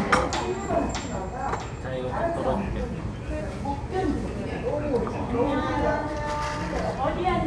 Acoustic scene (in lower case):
restaurant